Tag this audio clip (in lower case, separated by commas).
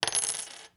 coin (dropping), home sounds